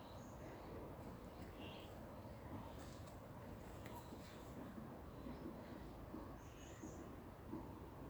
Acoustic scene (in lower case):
park